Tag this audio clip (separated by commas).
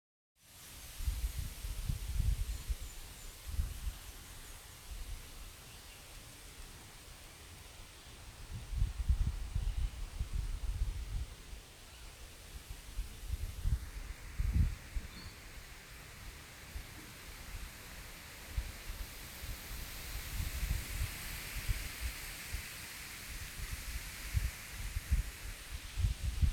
Wind